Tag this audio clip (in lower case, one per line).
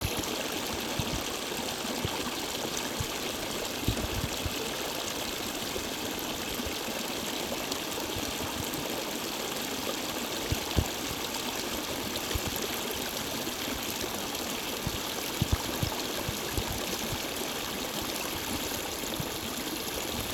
water
stream